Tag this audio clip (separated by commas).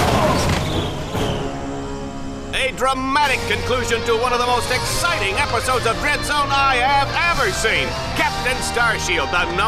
Music, Speech